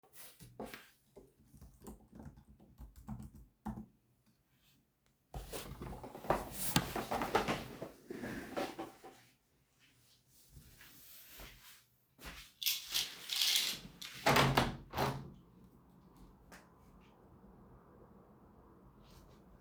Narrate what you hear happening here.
I am typing on the keyboard, I stop and get up from my chair, I walk to the window, draw the curtain and open the window.